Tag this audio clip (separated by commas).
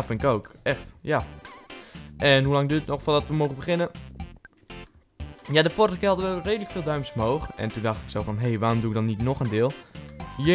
Speech, Music